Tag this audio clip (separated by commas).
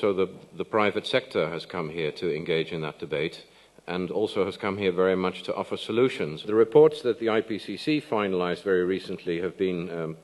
Speech